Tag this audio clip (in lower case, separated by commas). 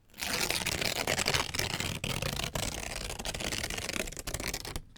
tearing